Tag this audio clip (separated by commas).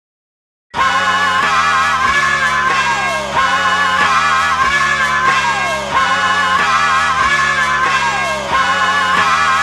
Music